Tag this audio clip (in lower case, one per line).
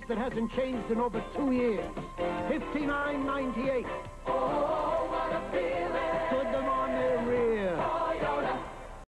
speech
music